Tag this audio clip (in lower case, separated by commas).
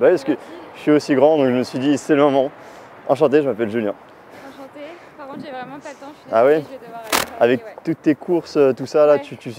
speech